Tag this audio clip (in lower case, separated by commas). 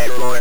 speech, human voice